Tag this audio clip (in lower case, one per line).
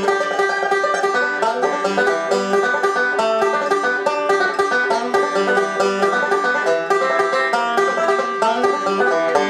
playing banjo